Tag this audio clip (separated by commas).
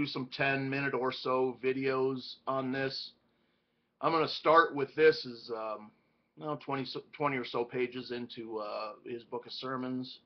Speech